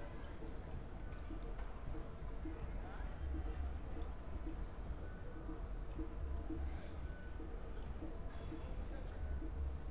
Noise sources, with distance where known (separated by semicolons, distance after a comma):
music from an unclear source, far; person or small group talking